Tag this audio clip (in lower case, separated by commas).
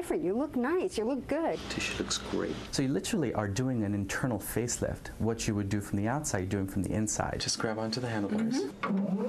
speech, inside a small room